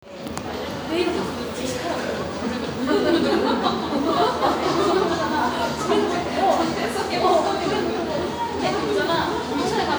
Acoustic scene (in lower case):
cafe